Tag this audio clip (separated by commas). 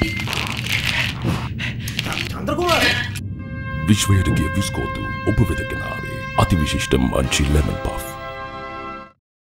Speech, Music